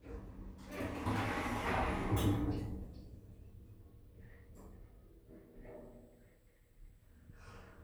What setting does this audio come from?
elevator